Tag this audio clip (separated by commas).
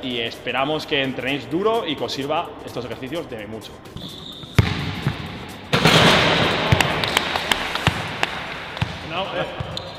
basketball bounce